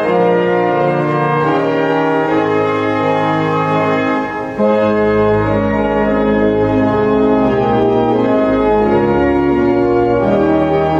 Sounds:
Piano, Music, Musical instrument, Keyboard (musical)

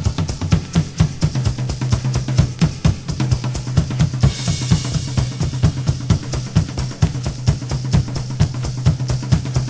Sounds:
Music

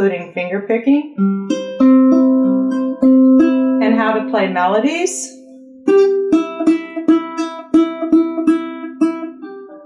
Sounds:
Ukulele, Plucked string instrument, Music, Musical instrument, Speech, Guitar

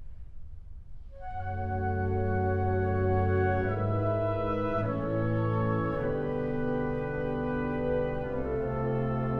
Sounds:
Music

